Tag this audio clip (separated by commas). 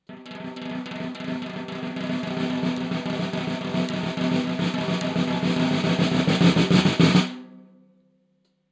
Drum, Music, Musical instrument, Percussion, Snare drum